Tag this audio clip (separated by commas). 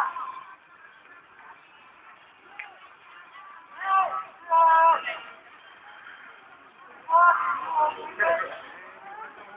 Speech, outside, urban or man-made